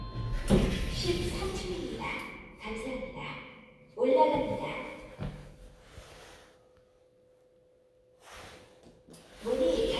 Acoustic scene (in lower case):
elevator